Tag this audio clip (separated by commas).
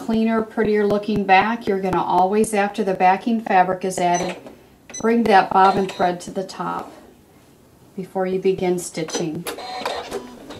Sewing machine, Speech